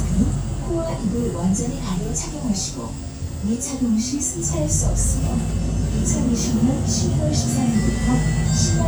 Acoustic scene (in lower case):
bus